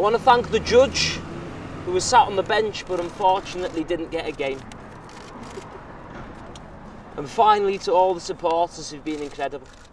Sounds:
speech

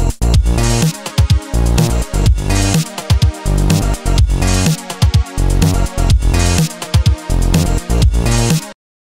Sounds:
music

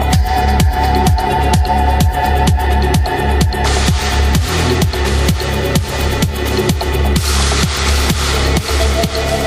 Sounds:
music, electronica

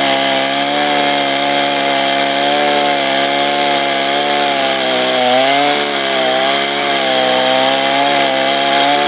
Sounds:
chainsawing trees, chainsaw

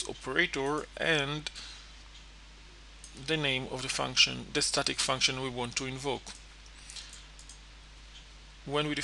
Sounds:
speech

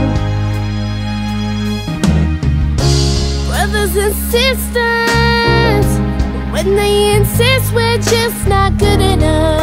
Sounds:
music

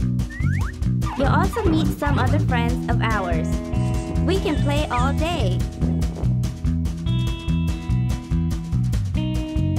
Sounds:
music, speech

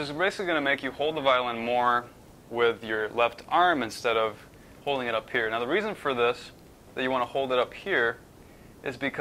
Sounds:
speech

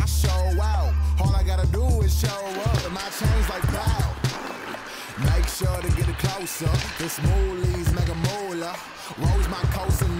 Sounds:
music

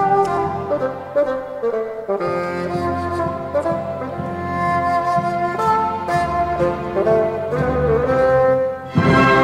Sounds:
playing bassoon

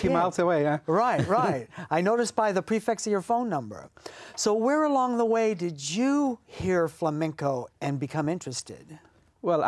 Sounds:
speech

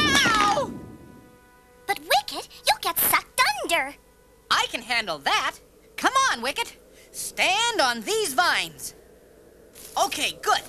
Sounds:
speech, music, outside, rural or natural

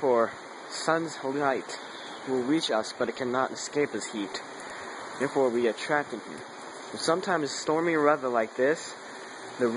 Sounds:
rain

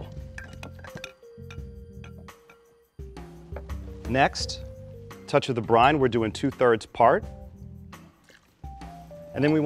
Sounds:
speech, music

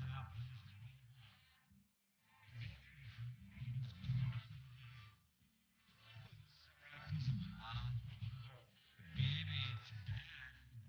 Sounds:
speech

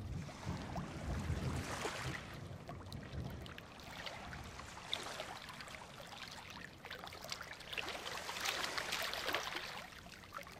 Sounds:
waves

